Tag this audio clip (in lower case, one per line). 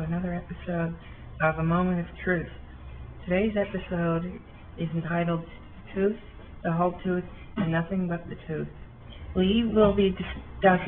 speech